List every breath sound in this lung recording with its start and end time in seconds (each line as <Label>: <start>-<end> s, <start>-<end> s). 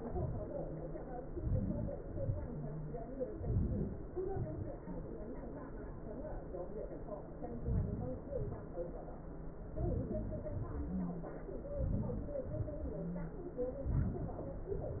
Inhalation: 1.34-1.92 s, 3.47-3.93 s, 7.63-8.21 s, 11.84-12.49 s
Exhalation: 2.06-2.49 s, 4.29-4.76 s, 8.39-8.81 s, 12.57-13.04 s